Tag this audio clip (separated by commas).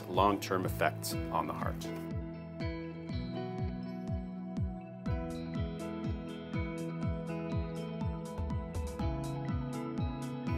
Speech, Music